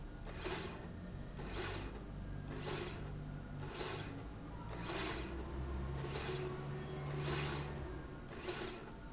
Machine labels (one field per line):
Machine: slide rail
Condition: normal